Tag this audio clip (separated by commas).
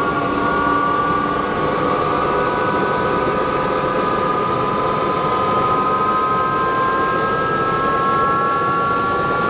Vehicle, Aircraft